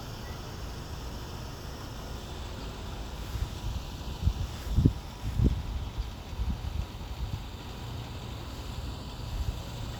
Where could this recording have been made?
on a street